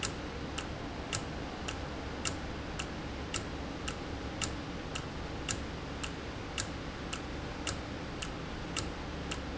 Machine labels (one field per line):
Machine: valve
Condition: normal